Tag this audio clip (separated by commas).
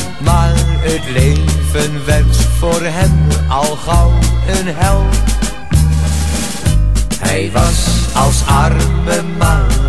Music, Exciting music